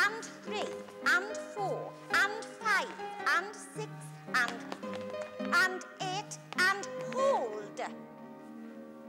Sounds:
Music, Speech, inside a large room or hall

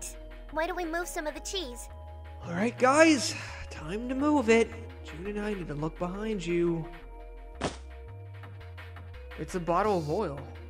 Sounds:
Speech, Music

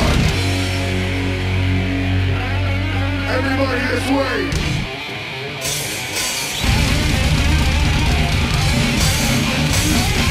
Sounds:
Music, Speech

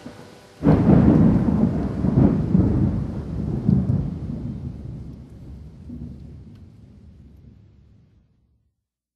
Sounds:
Thunderstorm

